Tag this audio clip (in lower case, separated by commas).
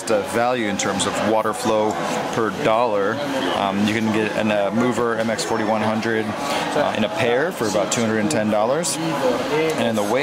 speech